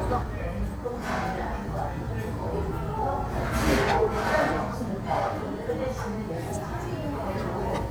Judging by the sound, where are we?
in a restaurant